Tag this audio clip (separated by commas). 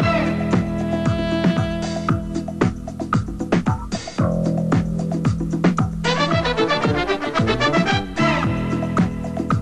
Music, Theme music